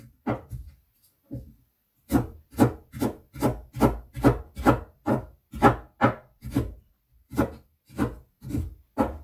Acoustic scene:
kitchen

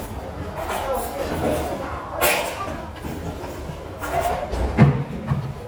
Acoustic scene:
restaurant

